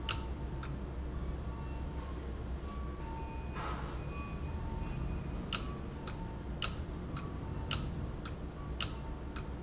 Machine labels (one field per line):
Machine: valve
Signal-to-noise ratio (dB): -6 dB